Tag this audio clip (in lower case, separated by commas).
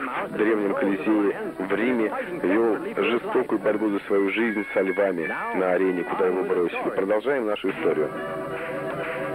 music, speech